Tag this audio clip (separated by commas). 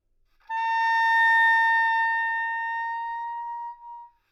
Musical instrument, Wind instrument, Music